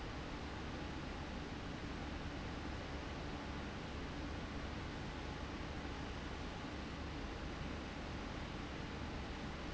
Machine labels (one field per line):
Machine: fan